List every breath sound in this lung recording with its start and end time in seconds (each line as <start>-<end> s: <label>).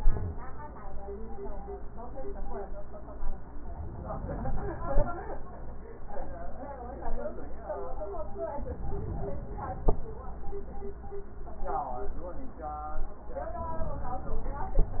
3.49-5.10 s: inhalation
8.46-9.86 s: inhalation